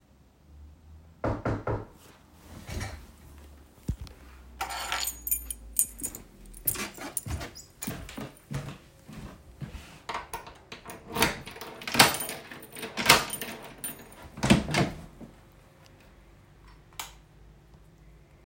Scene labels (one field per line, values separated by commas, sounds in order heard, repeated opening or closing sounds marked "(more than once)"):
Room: hallway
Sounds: keys, footsteps, door, light switch